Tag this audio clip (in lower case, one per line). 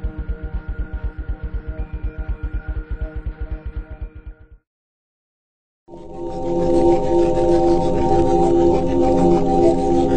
music